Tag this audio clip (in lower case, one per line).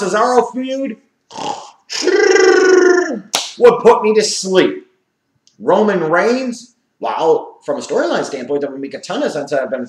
speech
inside a small room